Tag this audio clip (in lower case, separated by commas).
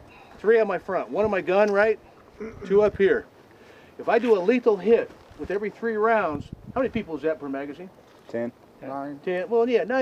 speech